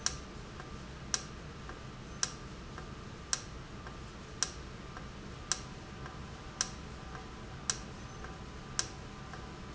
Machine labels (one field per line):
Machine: valve